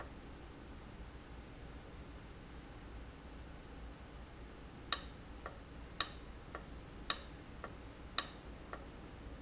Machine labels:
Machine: valve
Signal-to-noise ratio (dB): 6 dB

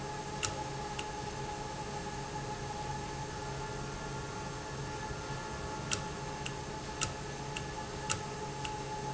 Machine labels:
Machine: valve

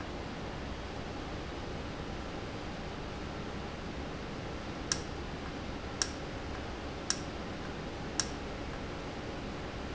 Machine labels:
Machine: valve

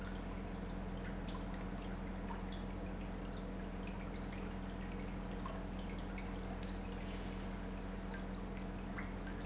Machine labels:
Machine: pump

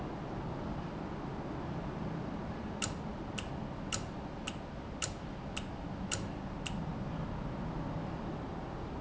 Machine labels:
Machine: valve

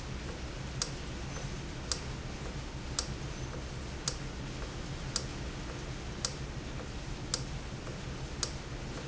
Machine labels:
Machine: valve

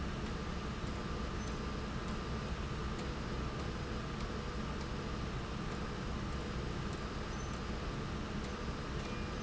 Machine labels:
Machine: slide rail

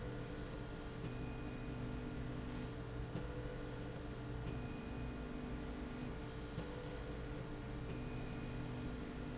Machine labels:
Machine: slide rail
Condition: normal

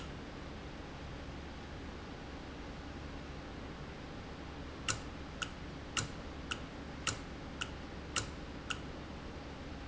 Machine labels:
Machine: valve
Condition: normal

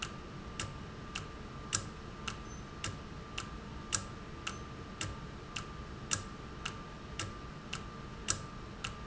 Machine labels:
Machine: valve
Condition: normal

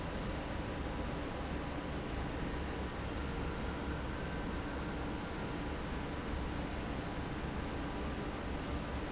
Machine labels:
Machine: fan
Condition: normal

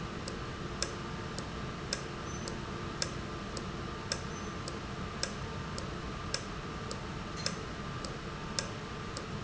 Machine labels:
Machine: valve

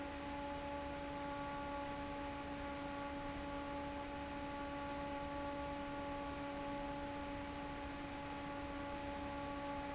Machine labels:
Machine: fan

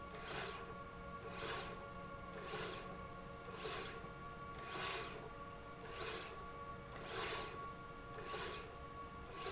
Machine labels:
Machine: slide rail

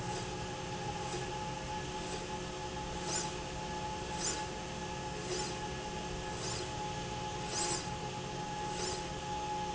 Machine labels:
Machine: slide rail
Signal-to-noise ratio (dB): -6 dB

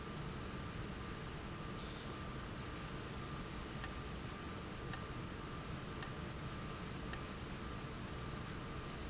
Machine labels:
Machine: valve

